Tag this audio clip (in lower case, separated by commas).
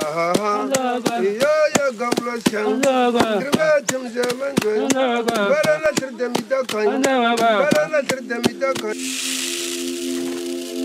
music